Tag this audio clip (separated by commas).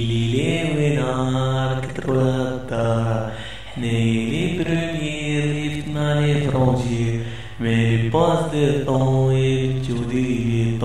Mantra